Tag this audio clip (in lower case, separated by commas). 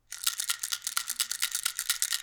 rattle